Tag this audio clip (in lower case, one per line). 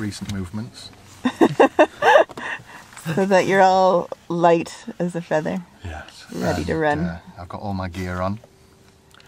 speech
laughter